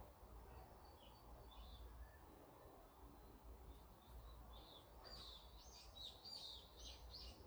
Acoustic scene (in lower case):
park